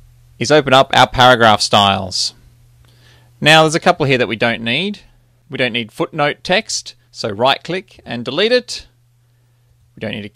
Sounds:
speech

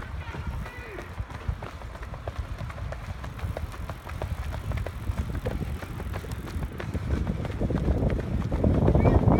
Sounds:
people running, run

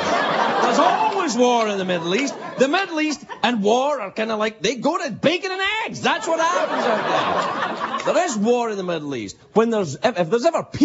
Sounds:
speech, narration

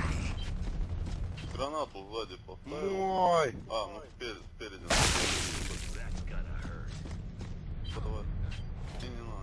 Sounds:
speech

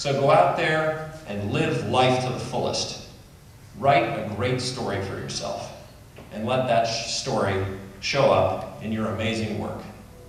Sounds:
speech, man speaking, narration

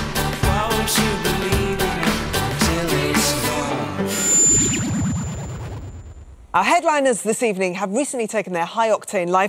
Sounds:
music, speech

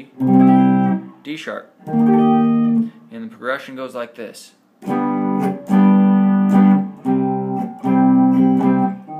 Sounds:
music, strum, speech, acoustic guitar, guitar, musical instrument, plucked string instrument

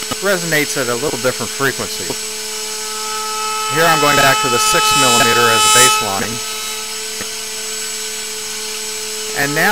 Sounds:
speech

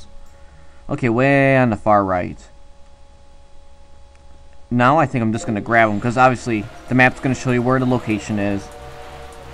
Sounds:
speech

